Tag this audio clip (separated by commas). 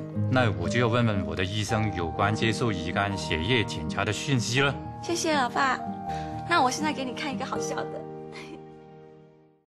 Music, Speech, Conversation